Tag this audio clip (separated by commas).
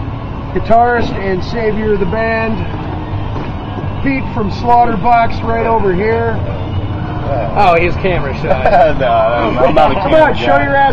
Speech